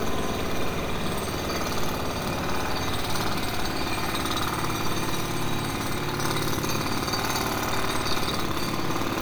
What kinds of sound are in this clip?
jackhammer